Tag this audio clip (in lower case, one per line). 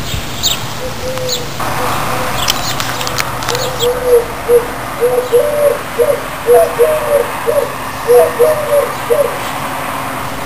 coo
bird